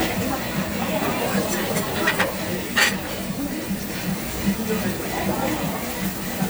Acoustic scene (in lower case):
restaurant